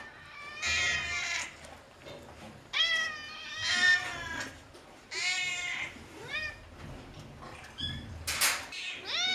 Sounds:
cat caterwauling

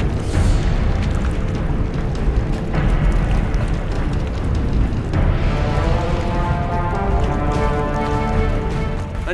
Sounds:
speech, music, boom

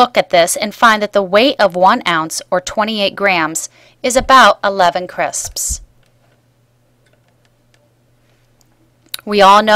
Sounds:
speech

